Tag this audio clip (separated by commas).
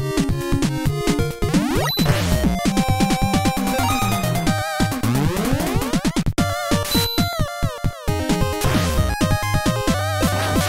Cacophony